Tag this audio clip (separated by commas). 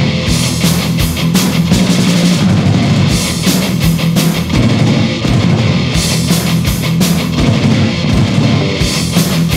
Heavy metal